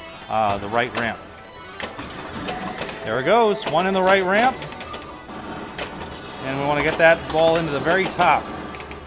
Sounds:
Music, Speech

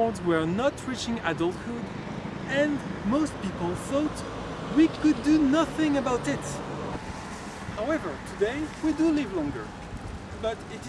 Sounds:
Speech

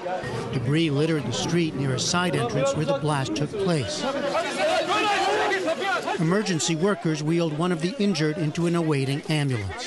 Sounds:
Speech

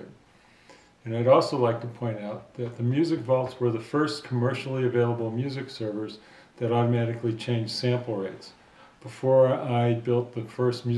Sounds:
Speech

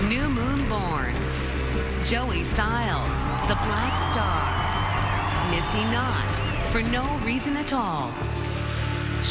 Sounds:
Speech, Music, Background music, Exciting music

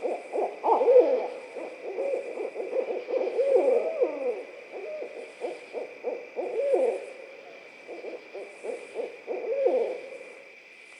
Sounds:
owl hooting

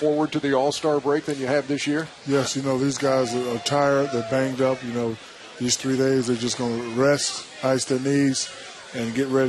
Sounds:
Music, Speech

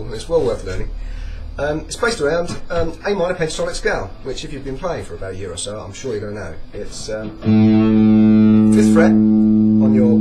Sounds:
Electric guitar, Guitar, Music, Strum, Plucked string instrument, Speech, Musical instrument, Acoustic guitar

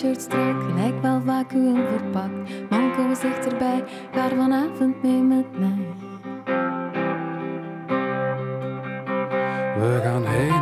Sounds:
Music

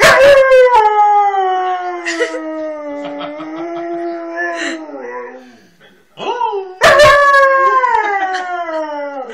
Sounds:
dog howling

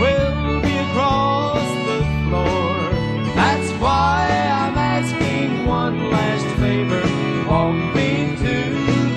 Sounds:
Music

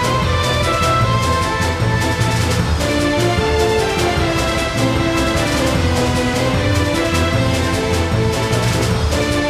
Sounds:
Music

